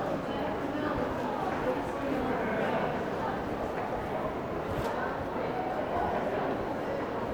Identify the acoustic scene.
crowded indoor space